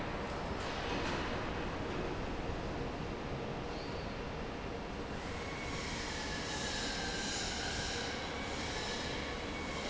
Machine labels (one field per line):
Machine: fan